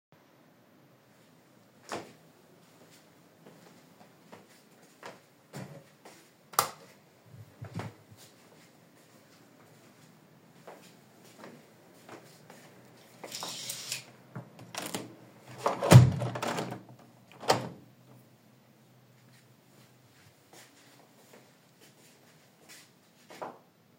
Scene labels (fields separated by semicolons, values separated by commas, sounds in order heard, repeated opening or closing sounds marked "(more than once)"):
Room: bedroom; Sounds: footsteps, light switch, window